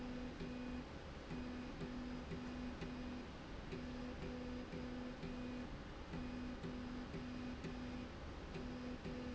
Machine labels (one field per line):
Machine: slide rail